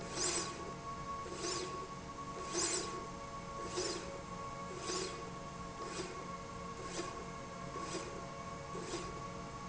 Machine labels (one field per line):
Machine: slide rail